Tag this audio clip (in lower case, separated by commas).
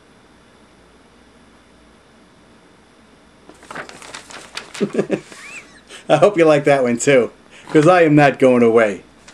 speech